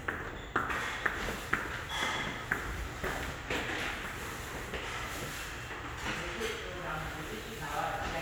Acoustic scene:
restaurant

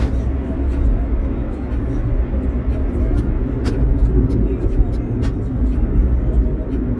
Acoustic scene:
car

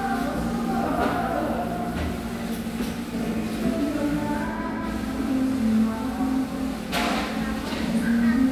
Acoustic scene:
cafe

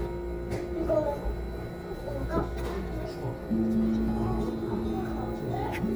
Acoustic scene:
crowded indoor space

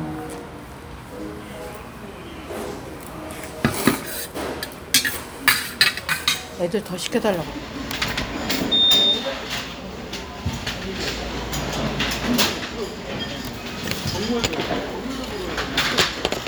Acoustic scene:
restaurant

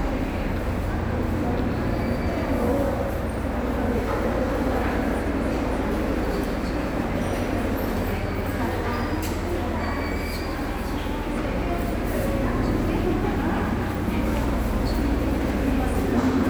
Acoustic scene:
subway station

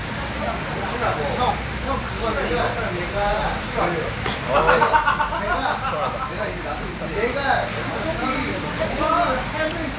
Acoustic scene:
crowded indoor space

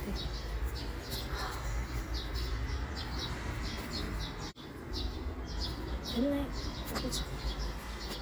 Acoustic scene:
park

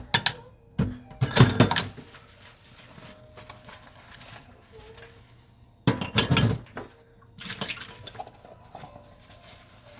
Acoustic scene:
kitchen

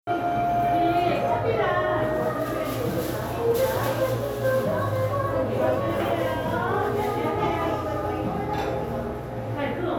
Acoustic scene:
cafe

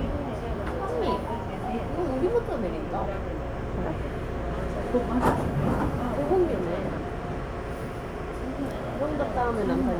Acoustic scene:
subway train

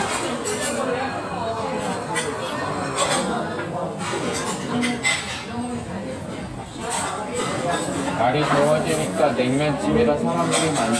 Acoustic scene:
restaurant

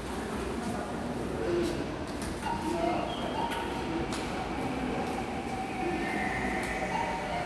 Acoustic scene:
subway station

